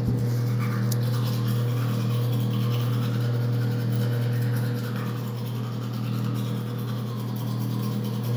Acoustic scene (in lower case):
restroom